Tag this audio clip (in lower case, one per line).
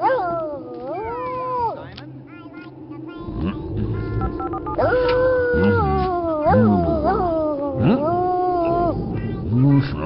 howl
speech
dog
yip
pets